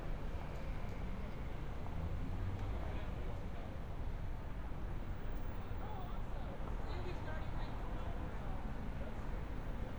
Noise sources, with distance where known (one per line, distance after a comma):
person or small group talking, far